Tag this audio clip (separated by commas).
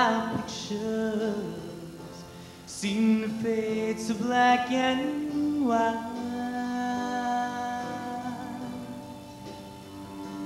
Vocal music, Gospel music, Music